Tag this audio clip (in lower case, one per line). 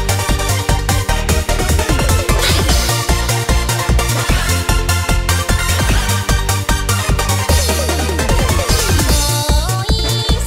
music